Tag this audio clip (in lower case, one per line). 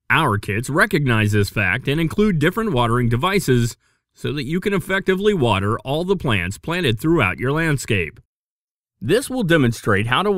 speech